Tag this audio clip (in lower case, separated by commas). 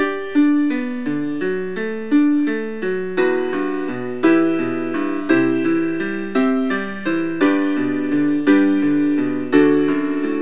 music